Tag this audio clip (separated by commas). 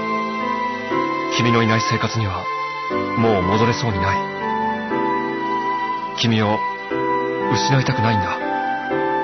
Music, Speech